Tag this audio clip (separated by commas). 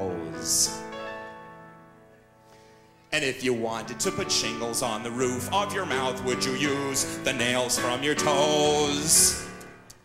Music, Tender music